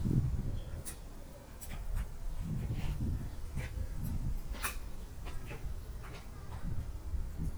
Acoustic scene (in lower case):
park